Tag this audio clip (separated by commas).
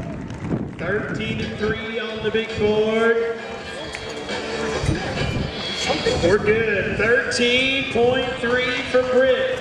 Animal, Music, Speech, Clip-clop